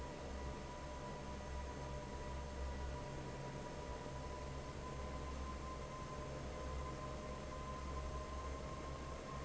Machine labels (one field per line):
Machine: fan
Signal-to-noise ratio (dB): 6 dB